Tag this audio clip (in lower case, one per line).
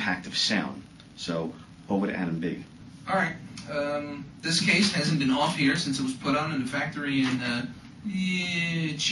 male speech